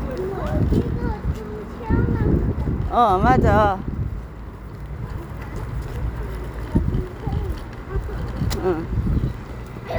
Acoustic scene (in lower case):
residential area